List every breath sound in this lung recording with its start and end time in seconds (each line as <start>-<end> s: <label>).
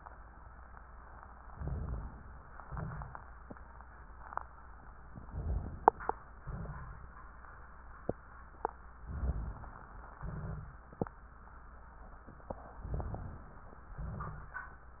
1.50-2.52 s: inhalation
1.50-2.52 s: rhonchi
2.54-3.32 s: exhalation
2.54-3.32 s: crackles
5.10-6.22 s: inhalation
6.43-7.13 s: exhalation
9.07-9.96 s: inhalation
9.07-9.96 s: crackles
10.18-10.88 s: exhalation
12.77-13.69 s: inhalation